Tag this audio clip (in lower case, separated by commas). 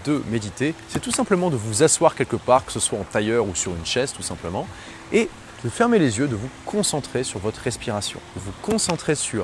music, speech